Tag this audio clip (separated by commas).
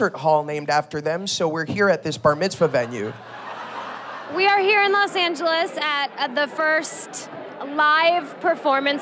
Speech